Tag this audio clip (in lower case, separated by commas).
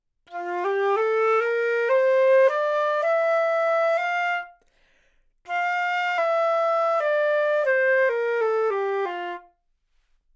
woodwind instrument, music, musical instrument